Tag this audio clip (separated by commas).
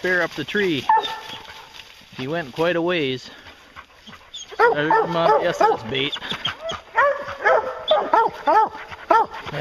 Growling, Animal, Dog, outside, rural or natural, Speech